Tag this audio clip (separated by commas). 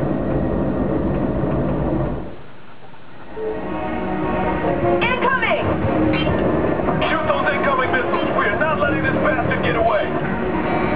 Music, Speech